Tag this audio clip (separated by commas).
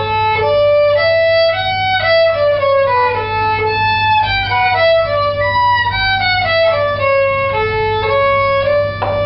Music, fiddle, Musical instrument